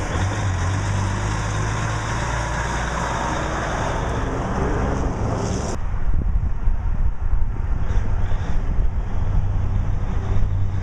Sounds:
Truck, Vehicle

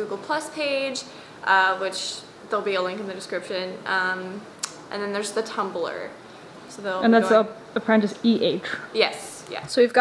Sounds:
Speech

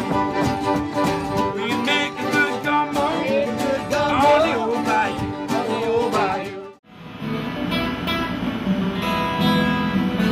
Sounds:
Music

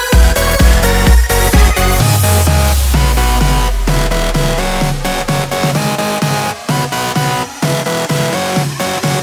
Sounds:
Electronic dance music

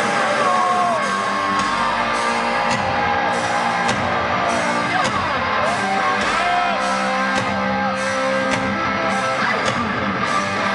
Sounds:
Music, Speech

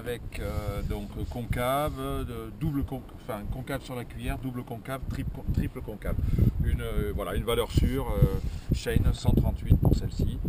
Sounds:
Speech

